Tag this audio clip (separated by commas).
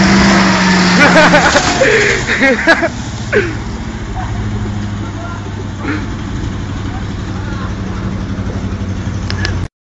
Truck, Vehicle